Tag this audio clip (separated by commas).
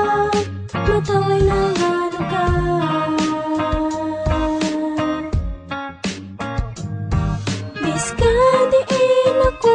Music